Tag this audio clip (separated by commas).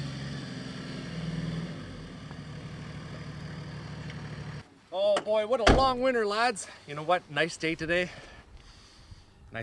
Speech